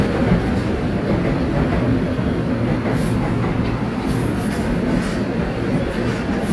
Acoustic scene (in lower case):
subway station